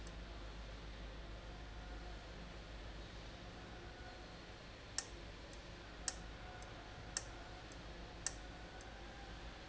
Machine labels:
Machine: valve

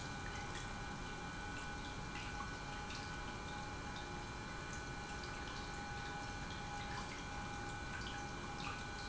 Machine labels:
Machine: pump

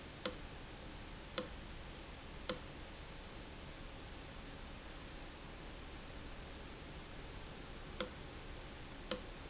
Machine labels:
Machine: valve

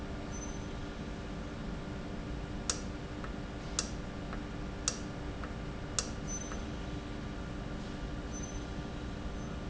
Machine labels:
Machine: valve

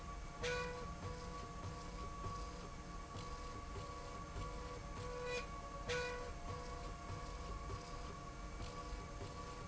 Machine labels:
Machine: slide rail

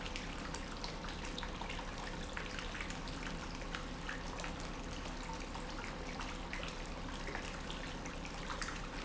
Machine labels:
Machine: pump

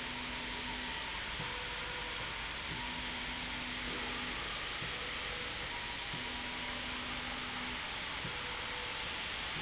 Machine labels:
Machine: slide rail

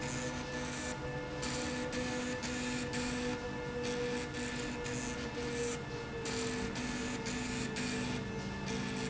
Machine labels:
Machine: slide rail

